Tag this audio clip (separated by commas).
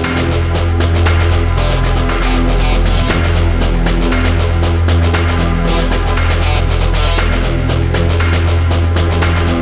Music